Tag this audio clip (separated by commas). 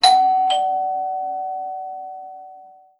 Door, Alarm, Doorbell, Domestic sounds